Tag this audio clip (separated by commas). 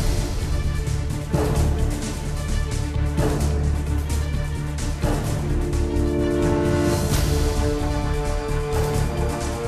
Music, Funk, Jazz